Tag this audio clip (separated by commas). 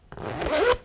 Zipper (clothing), Domestic sounds